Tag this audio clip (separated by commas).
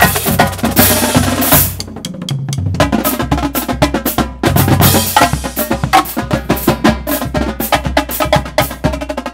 Musical instrument, Music, Bass drum, Drum kit, Percussion, Drum